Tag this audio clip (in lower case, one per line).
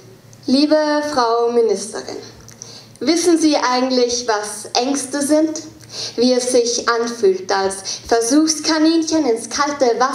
speech